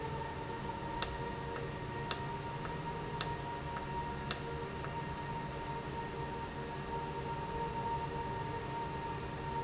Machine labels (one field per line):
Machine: valve